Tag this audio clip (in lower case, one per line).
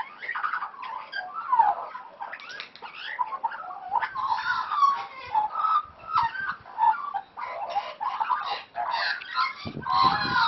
magpie calling